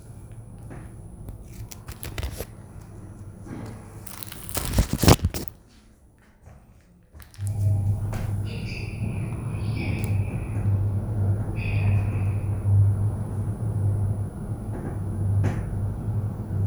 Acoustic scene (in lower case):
elevator